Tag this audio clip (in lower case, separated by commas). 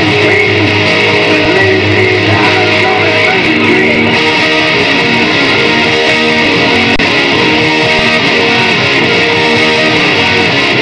guitar, music, musical instrument, electric guitar, acoustic guitar